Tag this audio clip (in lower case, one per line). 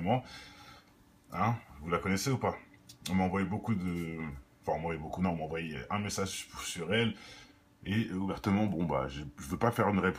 speech